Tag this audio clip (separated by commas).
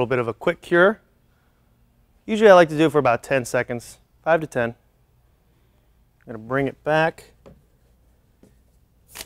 Speech